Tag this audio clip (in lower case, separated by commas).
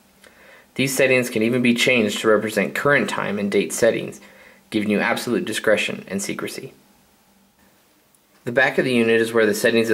speech